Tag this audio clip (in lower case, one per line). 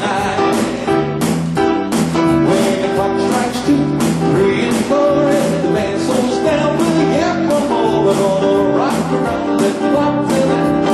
music